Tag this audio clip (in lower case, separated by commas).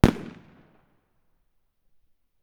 explosion, fireworks